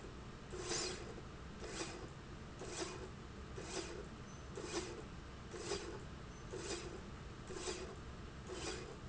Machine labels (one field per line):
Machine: slide rail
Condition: normal